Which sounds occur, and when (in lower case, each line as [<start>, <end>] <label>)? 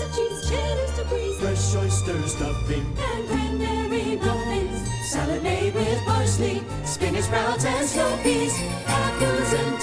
[0.00, 9.82] music
[0.08, 1.35] female singing
[1.32, 2.87] male singing
[2.91, 4.68] female singing
[4.96, 6.60] choir
[6.84, 8.89] choir
[8.17, 9.27] jingle bell
[8.86, 9.82] female singing